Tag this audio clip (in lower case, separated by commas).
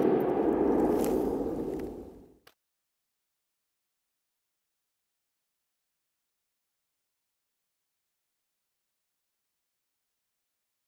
machine gun shooting